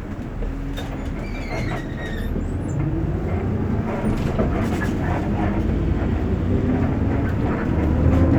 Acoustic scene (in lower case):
bus